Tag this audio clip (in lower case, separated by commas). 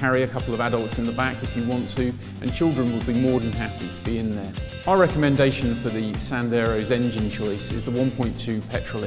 speech, music